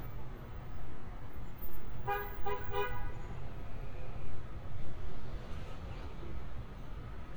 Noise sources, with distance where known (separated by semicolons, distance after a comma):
engine of unclear size; car horn, near